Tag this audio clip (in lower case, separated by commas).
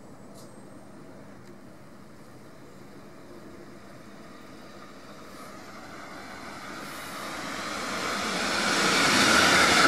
underground, train, rail transport, railroad car, vehicle